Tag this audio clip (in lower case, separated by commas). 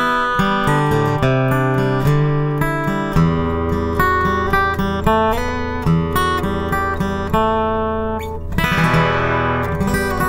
music